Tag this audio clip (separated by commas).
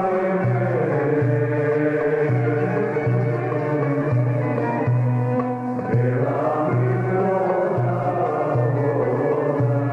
Music